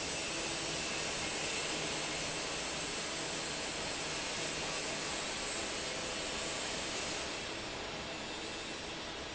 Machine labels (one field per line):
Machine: fan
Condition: normal